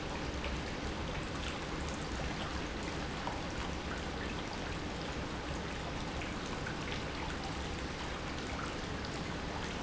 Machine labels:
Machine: pump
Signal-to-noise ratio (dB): -6 dB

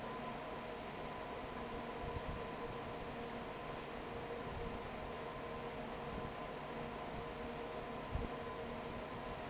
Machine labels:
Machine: fan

